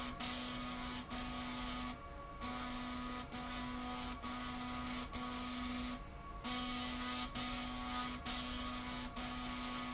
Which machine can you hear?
slide rail